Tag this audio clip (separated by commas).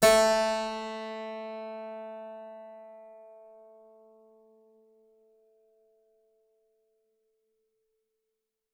Music, Keyboard (musical), Musical instrument